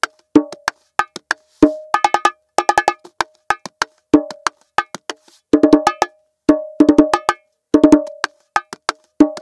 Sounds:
playing bongo

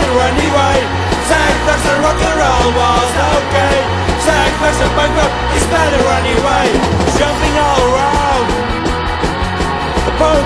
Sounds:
rock and roll, music

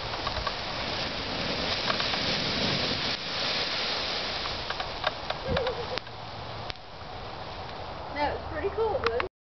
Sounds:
speech

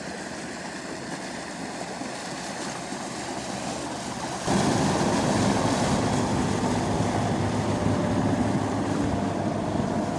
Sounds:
boat, vehicle

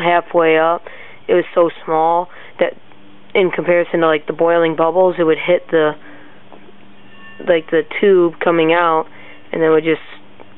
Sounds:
speech

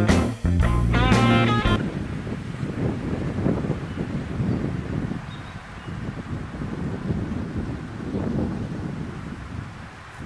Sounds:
wind noise (microphone), wind, wind noise

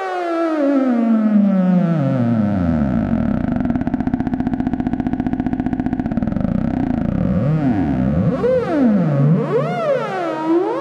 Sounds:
playing synthesizer, musical instrument, synthesizer, music

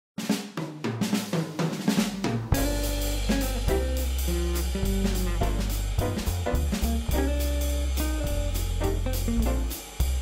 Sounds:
snare drum, music

